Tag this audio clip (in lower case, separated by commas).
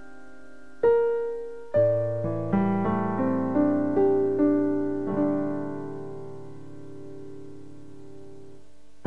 music